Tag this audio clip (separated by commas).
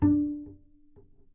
Bowed string instrument, Musical instrument, Music